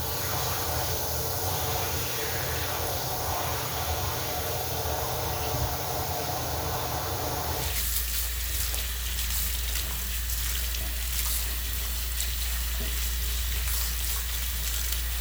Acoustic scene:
restroom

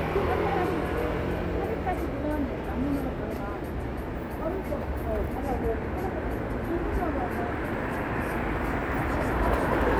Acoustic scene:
street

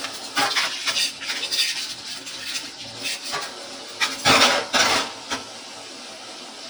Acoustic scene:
kitchen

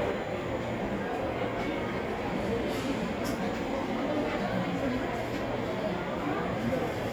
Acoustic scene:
cafe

